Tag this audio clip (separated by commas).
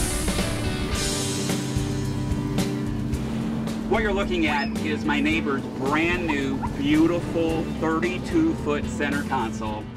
speedboat, Boat